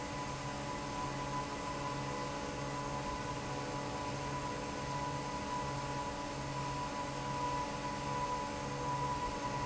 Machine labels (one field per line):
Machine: fan